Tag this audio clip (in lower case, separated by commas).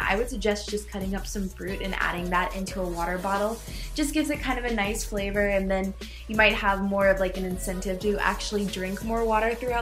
inside a small room, music, speech